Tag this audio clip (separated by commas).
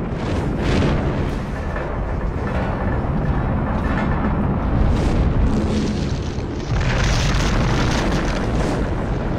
missile launch